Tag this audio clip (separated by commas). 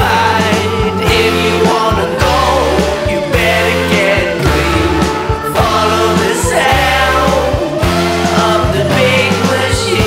Music, Sound effect